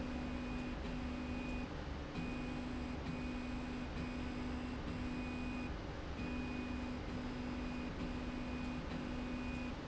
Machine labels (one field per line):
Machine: slide rail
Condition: normal